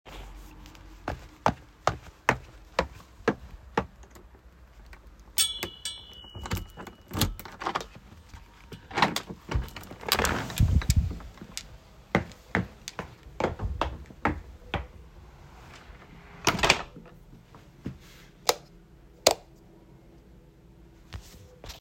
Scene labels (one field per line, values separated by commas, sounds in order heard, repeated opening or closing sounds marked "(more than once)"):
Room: hallway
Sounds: footsteps, keys, door (more than once), light switch